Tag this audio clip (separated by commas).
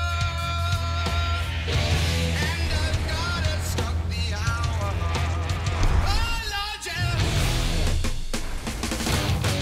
Music